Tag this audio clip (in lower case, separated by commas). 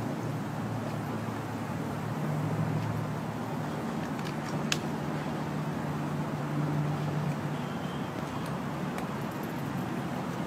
vehicle, bicycle